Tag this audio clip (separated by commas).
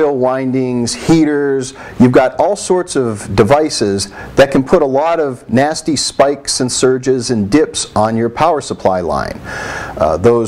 Speech